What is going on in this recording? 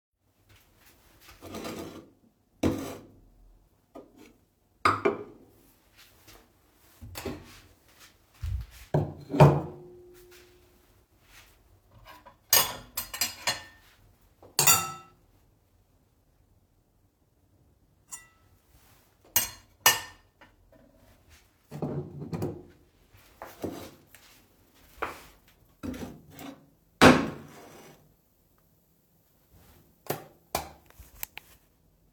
I use the cutlery dishes. Then I flick the light switch.